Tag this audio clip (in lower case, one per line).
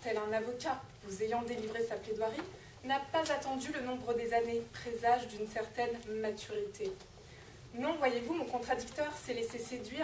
speech